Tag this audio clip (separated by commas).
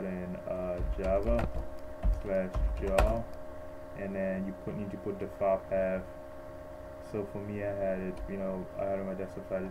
Speech, Typing